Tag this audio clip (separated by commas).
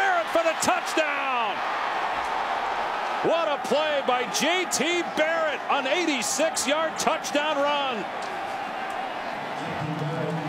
Speech